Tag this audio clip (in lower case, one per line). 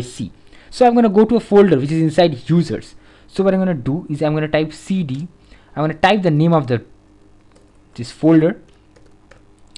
speech